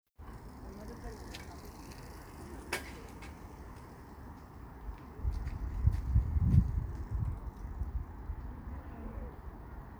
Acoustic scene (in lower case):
park